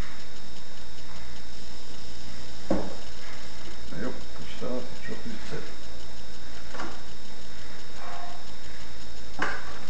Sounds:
Speech

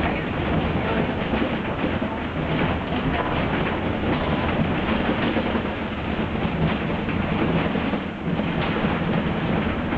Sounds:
Bus, Vehicle

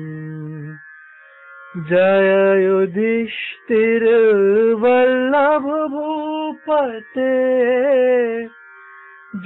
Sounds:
Music

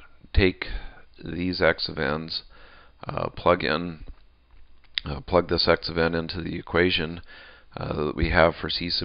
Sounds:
Speech

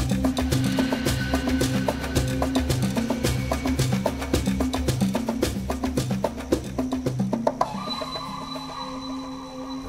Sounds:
Music

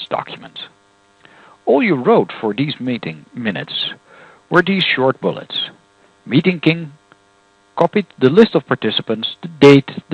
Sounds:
Speech

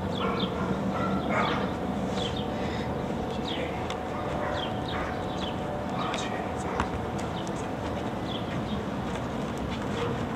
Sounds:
Yip, Domestic animals, Bow-wow, Animal, Dog

